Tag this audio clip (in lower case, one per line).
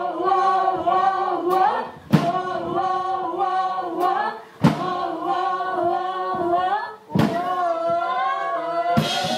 music
singing